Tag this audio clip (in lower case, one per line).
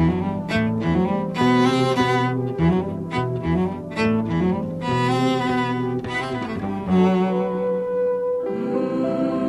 music
cello